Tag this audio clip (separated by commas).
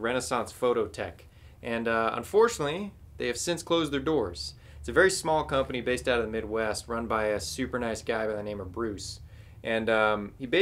Speech